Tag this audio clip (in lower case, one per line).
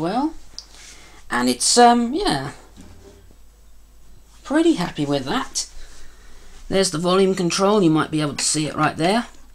speech
inside a small room